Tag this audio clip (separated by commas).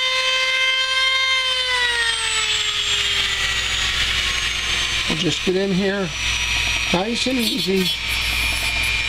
Speech